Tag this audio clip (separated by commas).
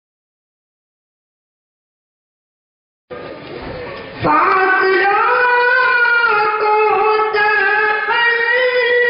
inside a large room or hall